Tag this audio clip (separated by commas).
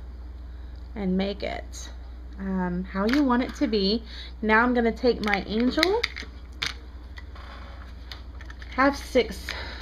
inside a small room, Speech